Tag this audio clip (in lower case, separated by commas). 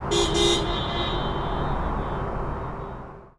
vehicle horn, traffic noise, car, vehicle, alarm, motor vehicle (road)